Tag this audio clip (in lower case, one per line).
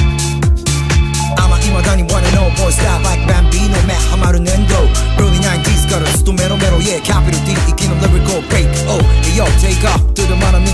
disco
music